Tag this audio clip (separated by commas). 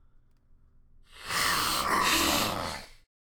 Hiss